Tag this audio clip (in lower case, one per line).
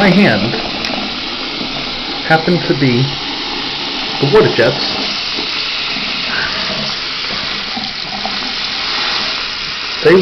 speech